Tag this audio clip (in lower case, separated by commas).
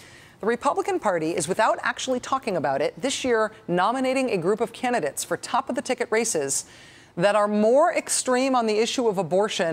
speech